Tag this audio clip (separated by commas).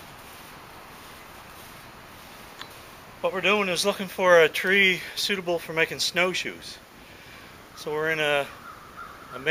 Speech